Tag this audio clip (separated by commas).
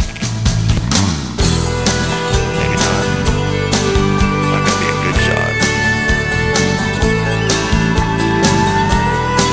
Speech, Psychedelic rock, Music